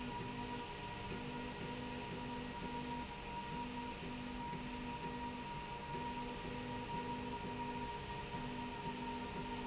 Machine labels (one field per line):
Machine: slide rail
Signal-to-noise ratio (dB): 0 dB